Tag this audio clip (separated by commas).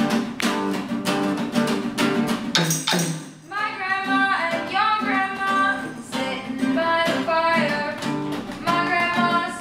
Music, Singing, Musical instrument